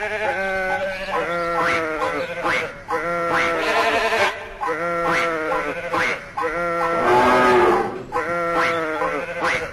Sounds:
Music, Bleat, Sheep

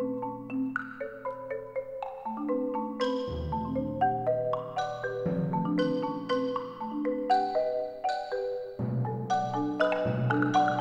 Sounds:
Wood block, Music, Percussion

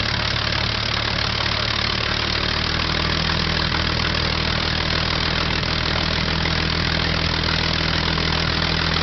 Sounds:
Engine, Idling, Vehicle, Heavy engine (low frequency)

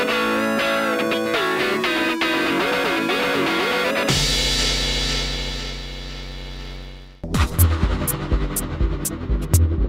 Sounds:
Mains hum, Hum

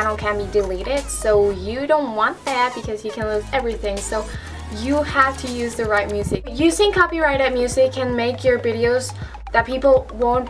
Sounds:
Techno, Electronic music, Speech, Music

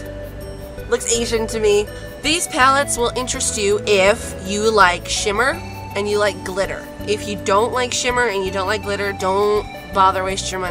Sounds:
Speech, Music

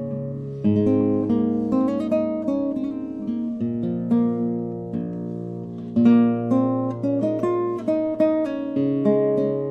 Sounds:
Musical instrument, Acoustic guitar, Plucked string instrument, Music, Guitar

